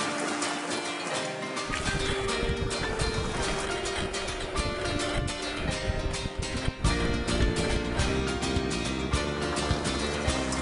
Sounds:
music, bicycle, vehicle

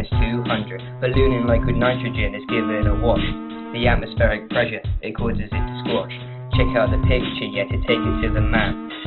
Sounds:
music

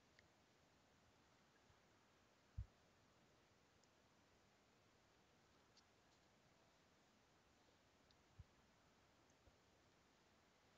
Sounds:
silence

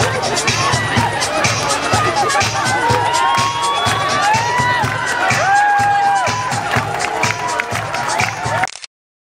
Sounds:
techno, electronic music, music

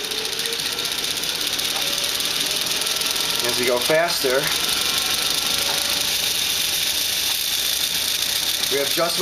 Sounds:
speech

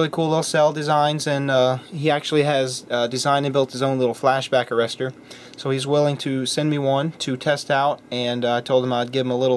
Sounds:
speech

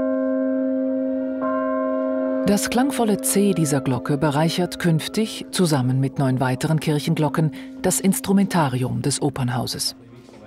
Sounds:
church bell

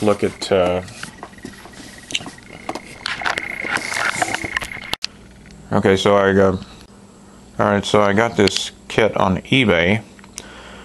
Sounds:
speech

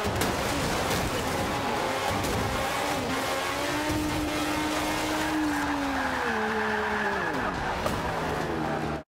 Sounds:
car passing by

